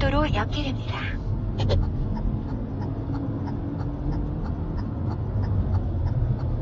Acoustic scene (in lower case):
car